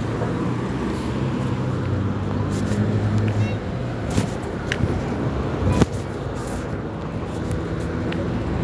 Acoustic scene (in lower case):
residential area